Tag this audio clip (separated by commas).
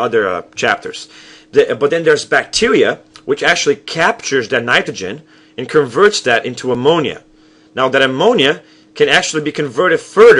Speech